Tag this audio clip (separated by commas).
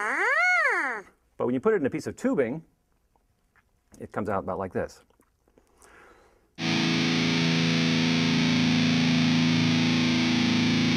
Speech, Music